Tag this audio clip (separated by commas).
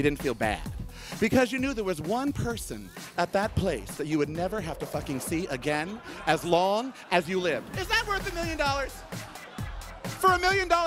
Speech, Music, Laughter